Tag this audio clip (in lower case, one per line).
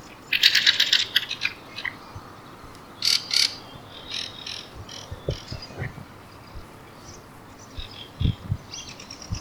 bird call
wild animals
bird
animal